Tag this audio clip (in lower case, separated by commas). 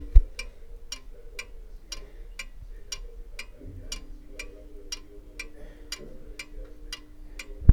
mechanisms, clock